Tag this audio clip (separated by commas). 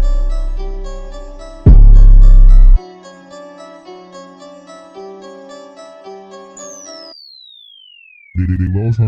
Speech, Music